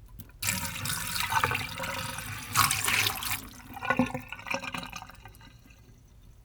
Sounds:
home sounds
water
sink (filling or washing)

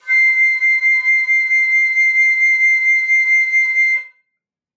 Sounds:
music
woodwind instrument
musical instrument

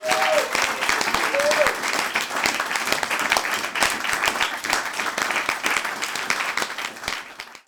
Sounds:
applause
cheering
human group actions

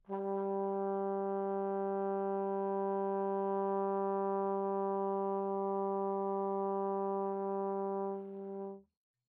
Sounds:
brass instrument
musical instrument
music

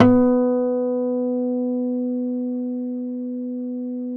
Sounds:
acoustic guitar
plucked string instrument
music
guitar
musical instrument

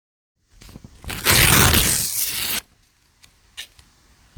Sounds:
tearing

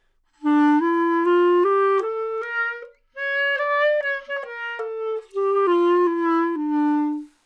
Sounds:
woodwind instrument
musical instrument
music

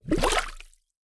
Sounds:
gurgling
water

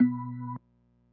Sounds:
keyboard (musical)
musical instrument
organ
music

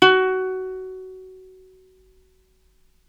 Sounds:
musical instrument
plucked string instrument
music

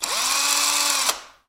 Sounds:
engine
power tool
drill
tools

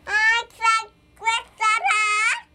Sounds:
human voice
speech

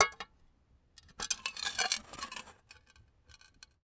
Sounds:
domestic sounds
dishes, pots and pans

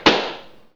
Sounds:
explosion

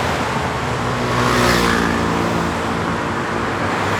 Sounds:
motorcycle
vehicle
motor vehicle (road)

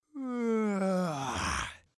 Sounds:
human voice

